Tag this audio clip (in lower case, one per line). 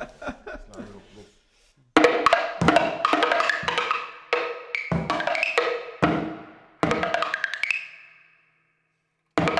speech
wood block
music
percussion